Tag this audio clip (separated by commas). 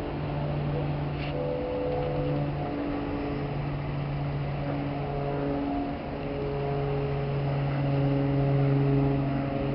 Boat, outside, urban or man-made, Vehicle